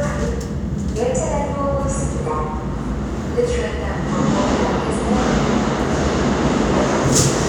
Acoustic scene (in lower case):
subway station